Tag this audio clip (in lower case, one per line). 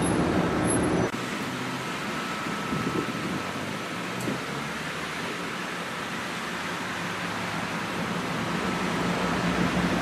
vehicle
outside, urban or man-made
car